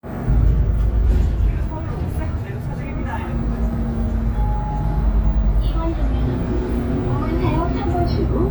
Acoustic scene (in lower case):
bus